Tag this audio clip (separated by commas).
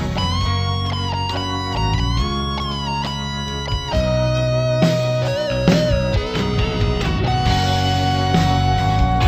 Music